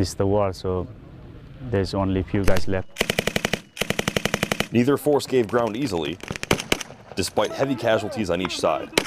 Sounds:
outside, rural or natural, speech

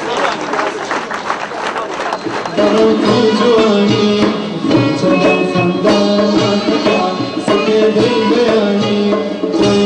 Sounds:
music

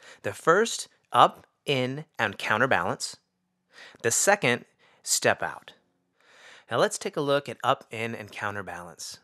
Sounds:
speech

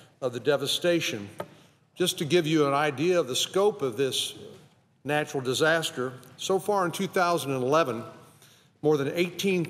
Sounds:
man speaking, speech, narration

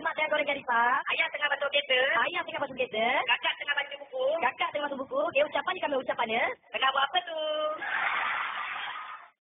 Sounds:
speech

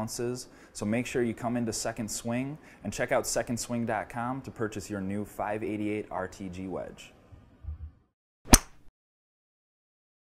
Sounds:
speech

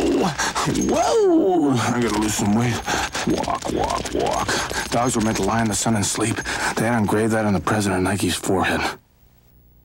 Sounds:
speech

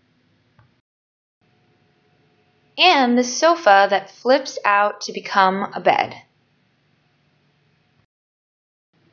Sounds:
speech

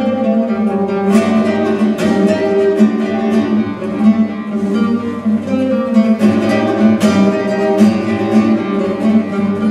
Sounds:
musical instrument, guitar, music, flamenco, strum, acoustic guitar, music of latin america, plucked string instrument

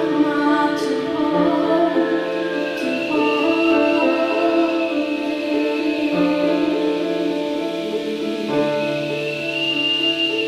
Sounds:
rustling leaves, music, wind noise (microphone)

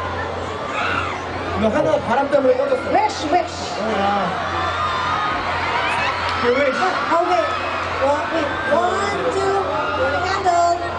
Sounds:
speech

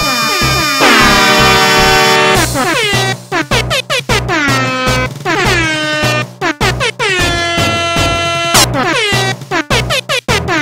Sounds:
air horn, music, cacophony, soundtrack music

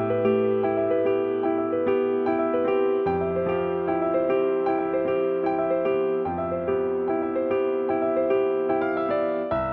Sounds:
music

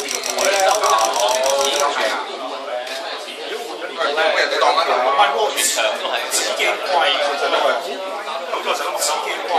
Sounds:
speech

